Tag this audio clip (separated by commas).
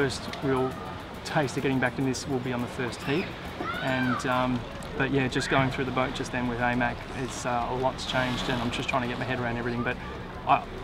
Music, Speech